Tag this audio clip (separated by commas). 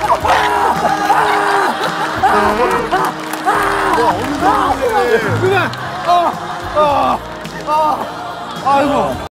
Music, Speech